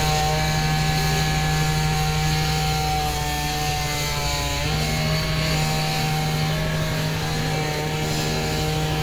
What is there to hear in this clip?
chainsaw